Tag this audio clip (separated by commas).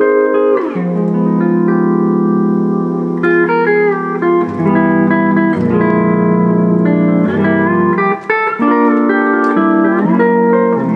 Electronic organ, Organ